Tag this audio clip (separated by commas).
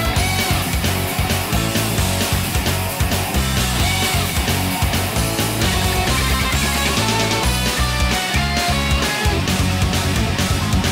Music